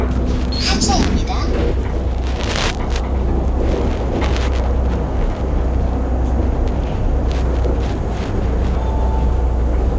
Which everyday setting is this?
bus